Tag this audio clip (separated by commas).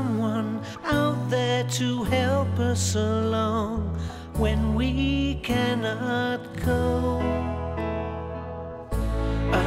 Music